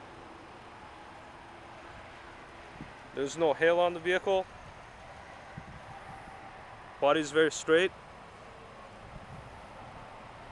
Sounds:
speech

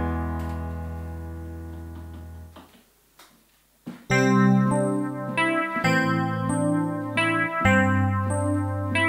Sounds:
music
piano
keyboard (musical)

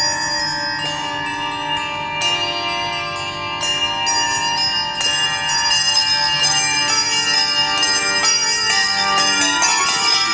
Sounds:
choir
music

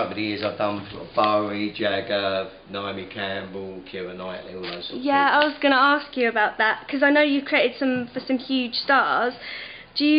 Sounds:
speech
inside a small room

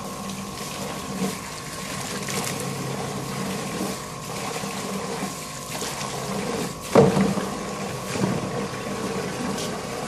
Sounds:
pumping water

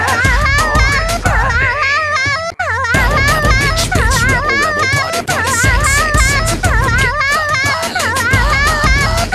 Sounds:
music

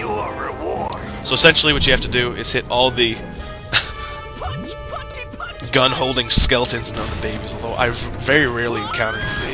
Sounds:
speech
music

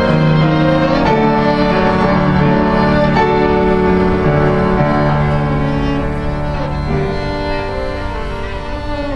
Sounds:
bowed string instrument
violin

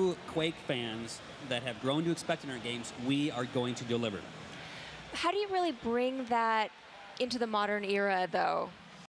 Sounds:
speech

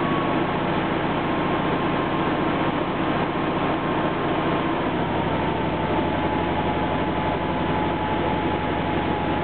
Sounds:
idling

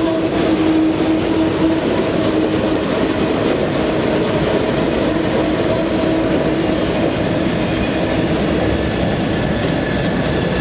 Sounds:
rail transport
railroad car
train
vehicle

